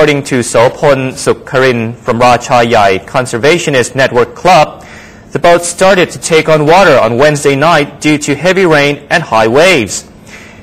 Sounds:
Speech

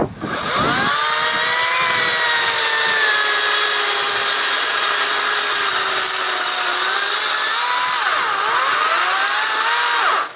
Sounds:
chainsawing trees

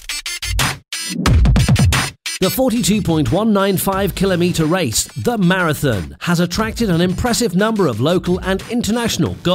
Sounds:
Music, Speech

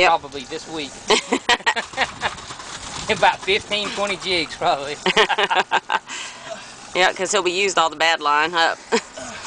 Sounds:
Speech, outside, rural or natural

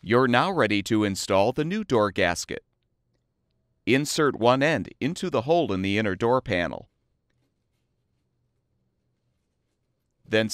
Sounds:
Speech

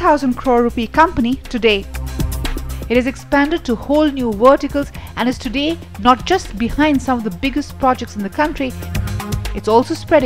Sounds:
Speech, Music

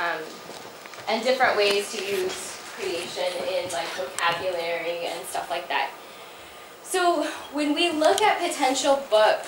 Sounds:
Speech

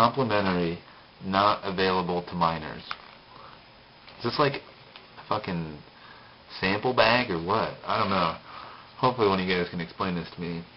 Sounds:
Speech, Male speech

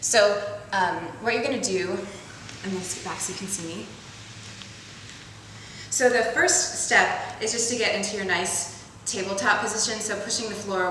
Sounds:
Speech

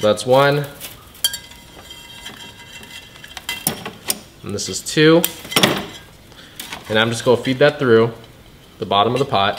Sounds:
Speech

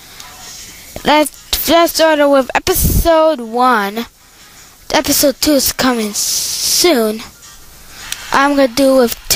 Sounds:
Speech

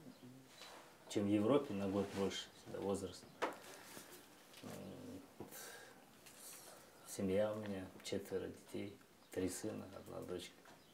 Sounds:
Speech

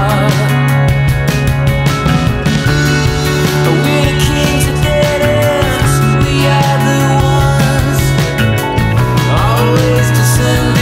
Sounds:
Music

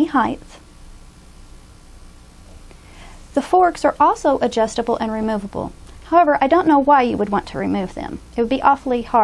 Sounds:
Speech

